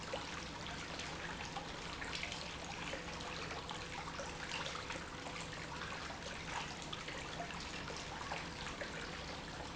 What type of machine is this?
pump